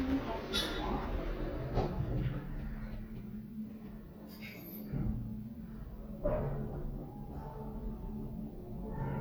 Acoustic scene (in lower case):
elevator